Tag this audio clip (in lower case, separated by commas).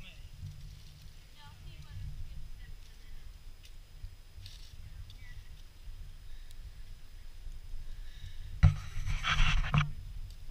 speech